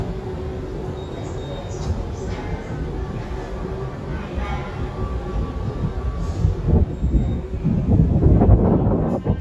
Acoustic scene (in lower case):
subway station